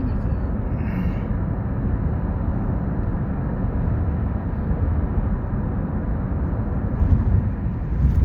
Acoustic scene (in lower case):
car